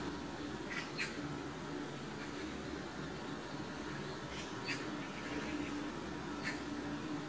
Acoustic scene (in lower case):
park